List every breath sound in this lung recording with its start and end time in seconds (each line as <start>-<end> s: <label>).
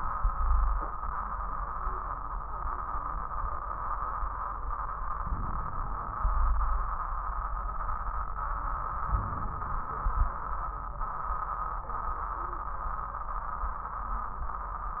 0.32-0.83 s: wheeze
5.20-6.21 s: inhalation
5.20-6.21 s: crackles
6.19-7.10 s: exhalation
6.19-7.10 s: wheeze
9.06-9.98 s: inhalation
9.06-9.98 s: crackles
9.99-10.51 s: exhalation
9.99-10.51 s: crackles